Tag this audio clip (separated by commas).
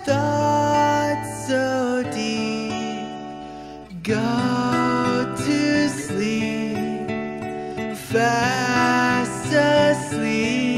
Music, Lullaby